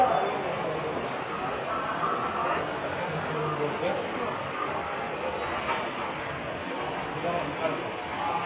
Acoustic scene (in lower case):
subway station